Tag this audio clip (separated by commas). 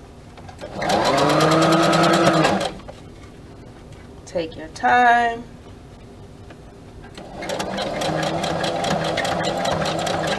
inside a small room, Sewing machine, Speech